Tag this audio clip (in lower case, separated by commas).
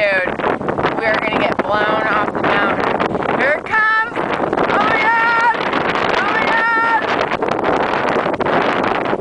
wind noise (microphone), speech